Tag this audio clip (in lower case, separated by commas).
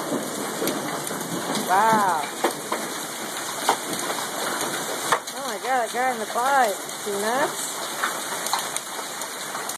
vehicle, speech, bicycle